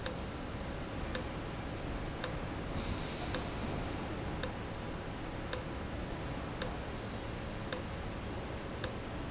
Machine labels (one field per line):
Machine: valve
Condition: abnormal